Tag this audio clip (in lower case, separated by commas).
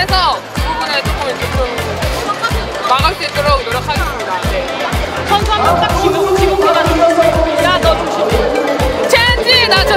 playing volleyball